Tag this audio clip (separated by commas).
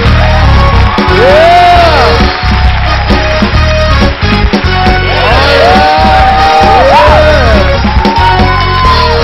Music